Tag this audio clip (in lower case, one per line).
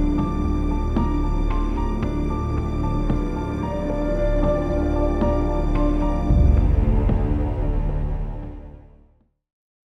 music